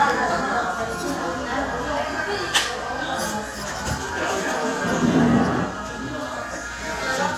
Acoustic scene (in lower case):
cafe